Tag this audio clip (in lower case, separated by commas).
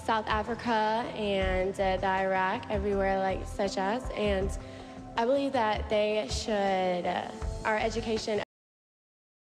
speech, female speech, narration, music